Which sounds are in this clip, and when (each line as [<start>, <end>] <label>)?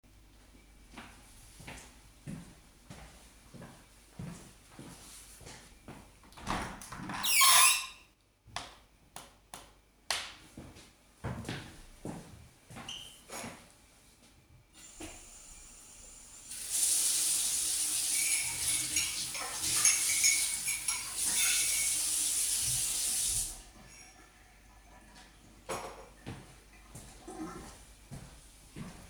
[0.69, 6.34] footsteps
[6.39, 10.23] window
[10.72, 13.79] footsteps
[14.78, 23.77] running water
[18.05, 22.08] cutlery and dishes
[25.54, 26.17] cutlery and dishes
[26.20, 29.09] footsteps